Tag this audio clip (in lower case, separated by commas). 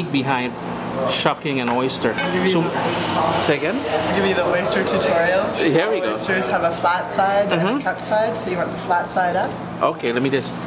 speech